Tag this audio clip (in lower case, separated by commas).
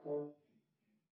brass instrument, musical instrument, music